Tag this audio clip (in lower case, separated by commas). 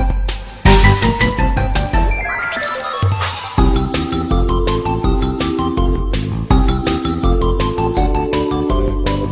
soundtrack music, music